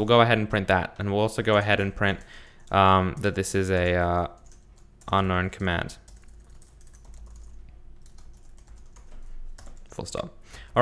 A man speaks and types on a keyboard